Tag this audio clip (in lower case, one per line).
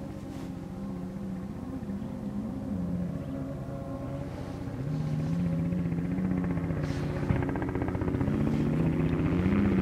car
vehicle